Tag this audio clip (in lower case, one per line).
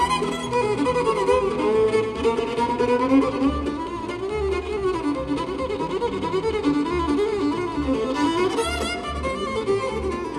music
musical instrument
bowed string instrument